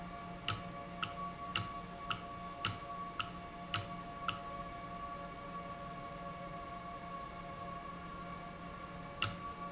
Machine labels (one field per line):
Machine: valve